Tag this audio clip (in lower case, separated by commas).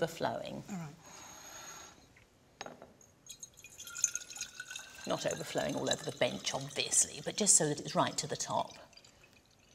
speech